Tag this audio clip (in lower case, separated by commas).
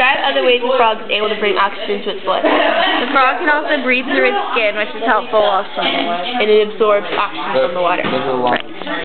speech